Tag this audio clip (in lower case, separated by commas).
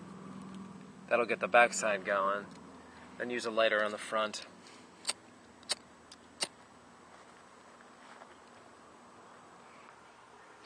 speech